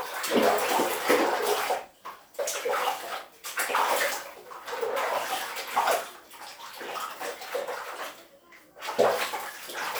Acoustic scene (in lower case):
restroom